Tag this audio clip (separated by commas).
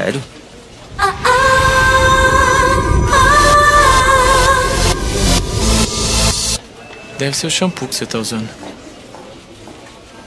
Music, Speech